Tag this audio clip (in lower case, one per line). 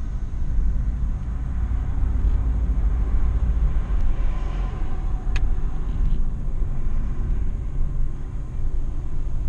car passing by
vehicle
car